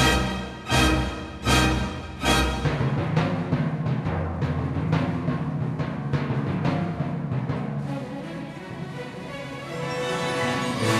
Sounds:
orchestra, bowed string instrument, timpani, classical music, musical instrument, music

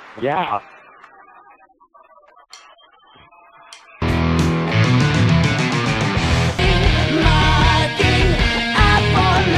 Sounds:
electric guitar, musical instrument, speech, plucked string instrument, acoustic guitar, music, guitar

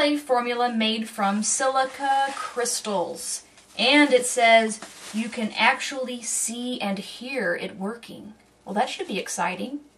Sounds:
speech

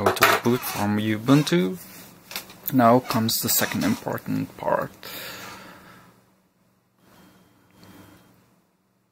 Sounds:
inside a small room, speech

